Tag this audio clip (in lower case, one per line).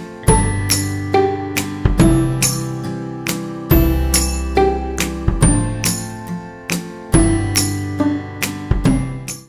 music